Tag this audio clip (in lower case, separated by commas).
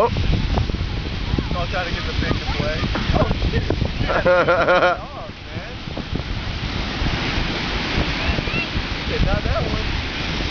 speech